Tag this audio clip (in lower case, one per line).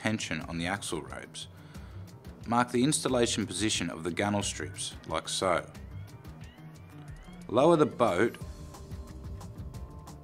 speech
music